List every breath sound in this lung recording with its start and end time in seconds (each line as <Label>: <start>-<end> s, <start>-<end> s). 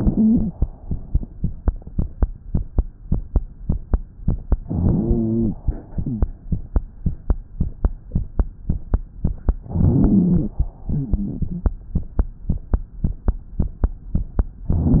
Inhalation: 4.67-5.56 s, 9.66-10.55 s
Exhalation: 5.67-6.30 s, 10.93-11.82 s
Wheeze: 0.00-0.53 s, 4.67-5.56 s, 5.67-6.30 s, 9.66-10.55 s, 10.93-11.82 s